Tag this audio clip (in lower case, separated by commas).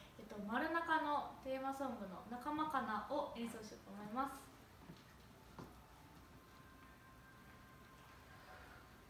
playing cornet